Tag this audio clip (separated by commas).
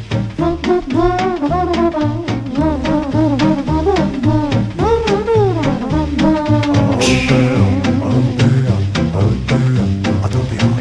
Swing music